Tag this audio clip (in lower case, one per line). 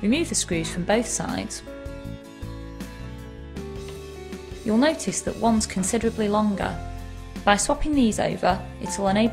music
speech